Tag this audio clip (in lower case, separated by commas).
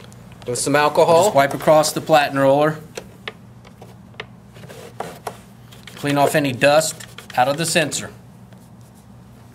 speech